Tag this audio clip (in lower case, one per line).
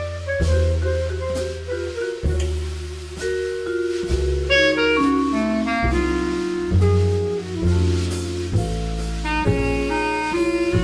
drum
percussion
drum kit
bass drum
rimshot
snare drum